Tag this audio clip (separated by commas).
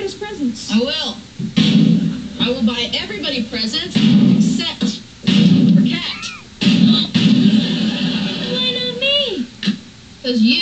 Speech